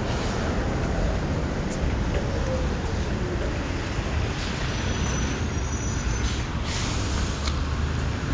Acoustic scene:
residential area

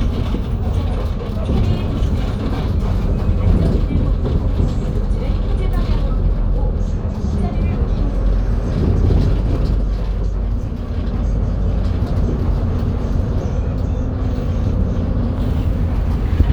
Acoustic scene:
bus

